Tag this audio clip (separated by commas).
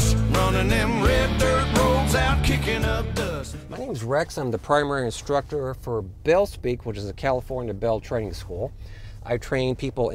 Music, Speech